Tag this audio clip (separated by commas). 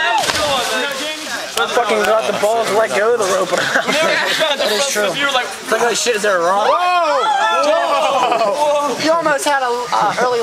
Speech